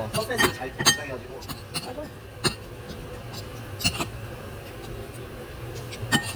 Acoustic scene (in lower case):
restaurant